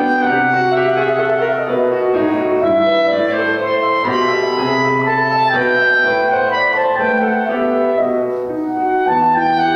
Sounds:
violin
musical instrument
music

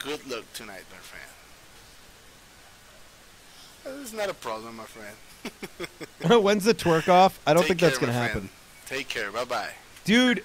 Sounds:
speech

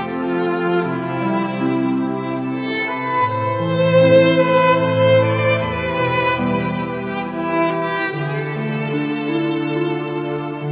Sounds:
fiddle
musical instrument
music

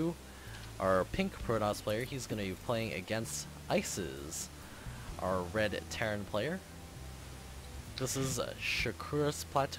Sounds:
music
speech

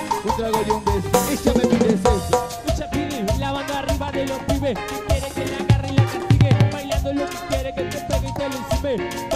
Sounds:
music

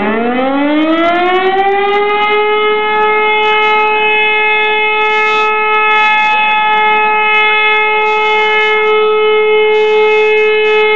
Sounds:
siren

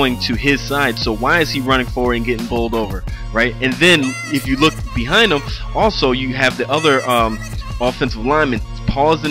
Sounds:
music
speech

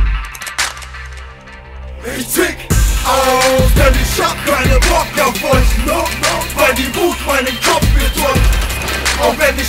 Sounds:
music

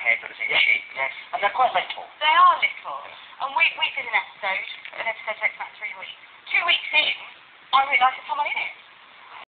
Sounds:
speech

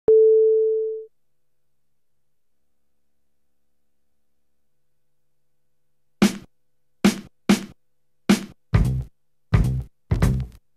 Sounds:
music
sampler
drum machine

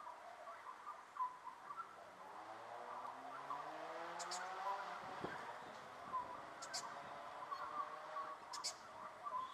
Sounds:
magpie calling

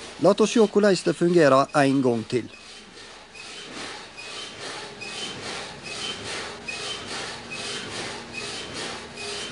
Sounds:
speech

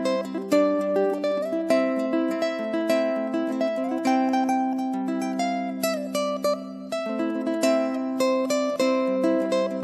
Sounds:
music

